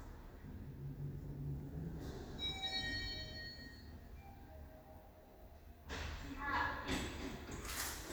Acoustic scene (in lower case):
elevator